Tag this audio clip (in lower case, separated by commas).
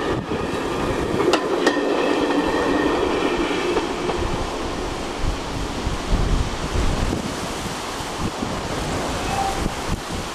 rail transport, vehicle, train